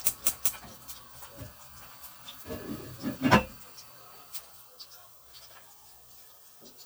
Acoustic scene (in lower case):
kitchen